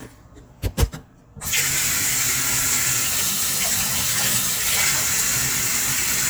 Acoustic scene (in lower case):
kitchen